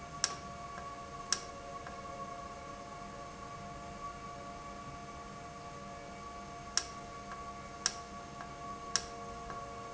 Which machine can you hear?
valve